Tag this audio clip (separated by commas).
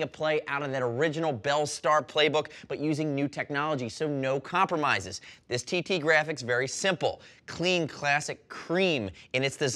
Speech